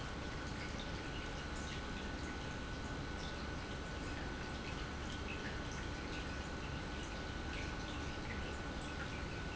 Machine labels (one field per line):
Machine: pump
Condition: normal